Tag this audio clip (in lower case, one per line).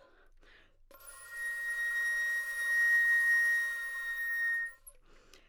musical instrument
music
woodwind instrument